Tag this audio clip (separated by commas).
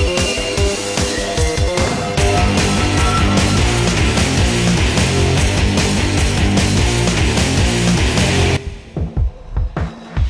Music